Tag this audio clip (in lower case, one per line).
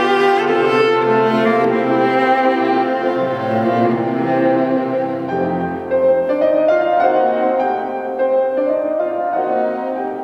orchestra
music
bowed string instrument
musical instrument
piano
cello
violin